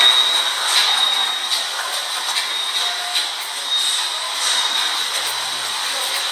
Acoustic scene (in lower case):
subway station